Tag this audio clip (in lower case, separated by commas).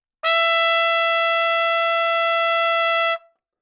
music, musical instrument, brass instrument, trumpet